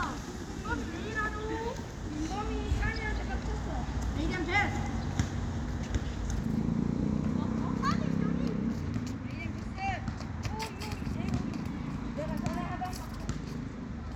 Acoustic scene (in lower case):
residential area